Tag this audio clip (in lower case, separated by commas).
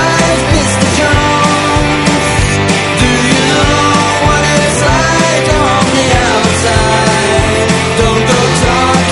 music, grunge